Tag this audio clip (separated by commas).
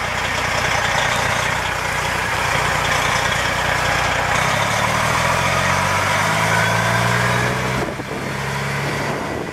Truck, Vehicle